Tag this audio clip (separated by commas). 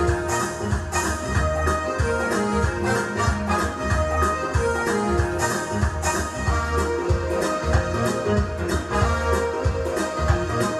Dance music, Music